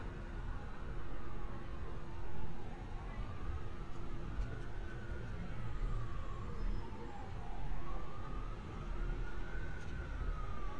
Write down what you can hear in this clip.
siren, person or small group talking